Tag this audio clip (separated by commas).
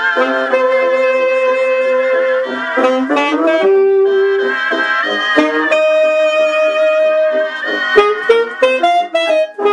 Saxophone, playing saxophone, Brass instrument